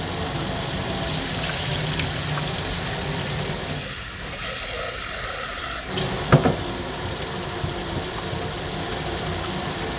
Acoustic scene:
kitchen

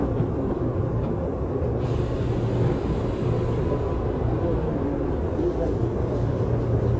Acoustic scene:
subway train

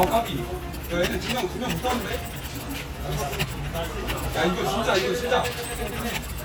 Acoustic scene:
crowded indoor space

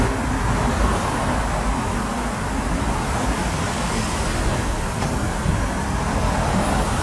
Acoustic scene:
street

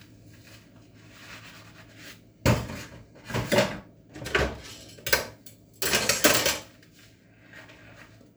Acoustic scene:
kitchen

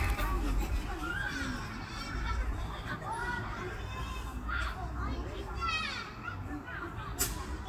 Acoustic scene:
park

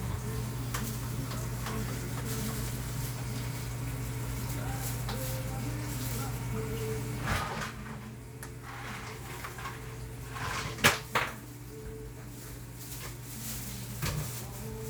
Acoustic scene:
cafe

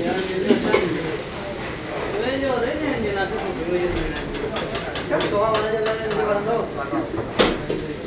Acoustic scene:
restaurant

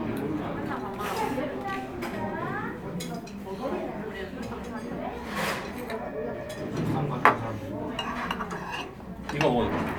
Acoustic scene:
crowded indoor space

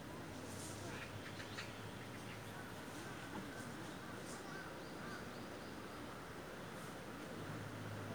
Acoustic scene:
park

